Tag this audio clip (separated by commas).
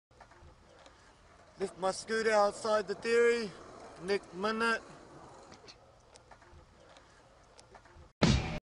Speech, Music